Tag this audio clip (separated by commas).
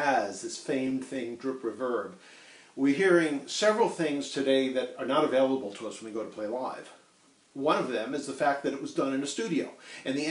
Speech